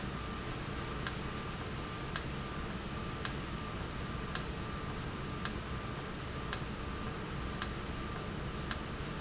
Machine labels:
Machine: valve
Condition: normal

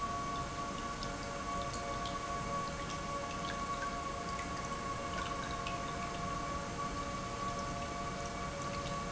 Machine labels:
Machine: pump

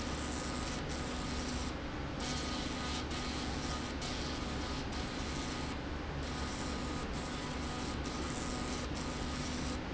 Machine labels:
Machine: slide rail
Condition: abnormal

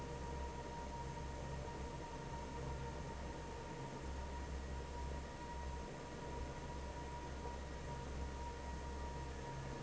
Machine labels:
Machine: fan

